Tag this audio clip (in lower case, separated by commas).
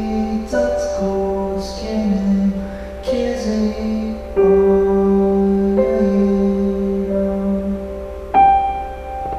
lullaby, music